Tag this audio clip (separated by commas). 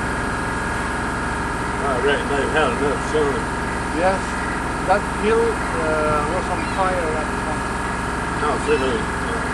Water vehicle, Speech, Motorboat, Vehicle